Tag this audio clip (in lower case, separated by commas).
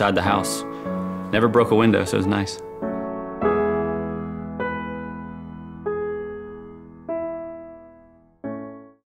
music, speech